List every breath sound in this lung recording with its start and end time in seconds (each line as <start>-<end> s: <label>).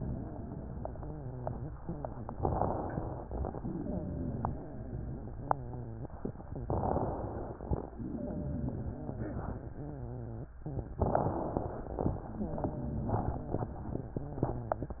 0.00-2.15 s: wheeze
2.33-3.44 s: inhalation
2.33-3.44 s: crackles
3.74-6.24 s: wheeze
6.68-7.79 s: inhalation
6.68-7.79 s: crackles
7.99-10.49 s: wheeze
10.98-12.10 s: inhalation
10.98-12.10 s: crackles
12.28-15.00 s: wheeze